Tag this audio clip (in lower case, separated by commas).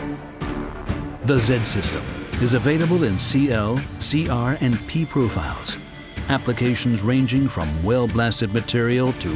music, speech